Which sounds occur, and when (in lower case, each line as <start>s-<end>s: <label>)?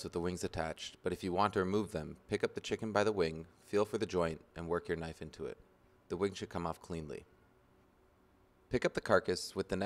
0.0s-0.9s: man speaking
0.0s-9.8s: mechanisms
1.0s-2.1s: man speaking
2.3s-3.4s: man speaking
3.7s-4.3s: man speaking
4.5s-5.6s: man speaking
6.1s-7.2s: man speaking
8.7s-9.8s: man speaking